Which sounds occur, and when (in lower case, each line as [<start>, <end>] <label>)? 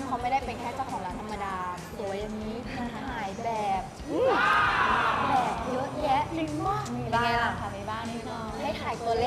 [0.00, 1.69] woman speaking
[0.00, 9.25] conversation
[0.00, 9.25] mechanisms
[0.00, 9.25] music
[1.85, 2.52] woman speaking
[2.60, 2.87] giggle
[2.85, 3.81] woman speaking
[3.99, 5.53] human voice
[4.73, 5.32] woman speaking
[5.52, 6.17] woman speaking
[6.27, 9.25] woman speaking